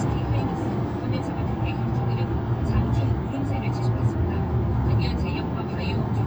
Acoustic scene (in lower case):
car